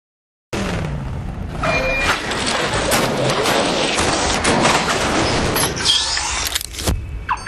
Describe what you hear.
Car's running followed by a loud pop's and bang's